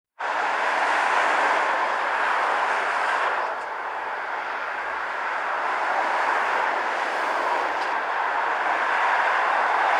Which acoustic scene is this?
street